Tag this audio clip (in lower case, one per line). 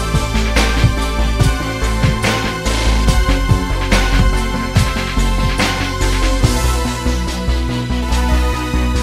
music